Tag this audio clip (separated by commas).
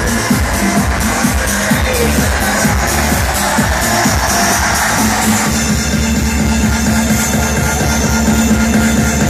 Music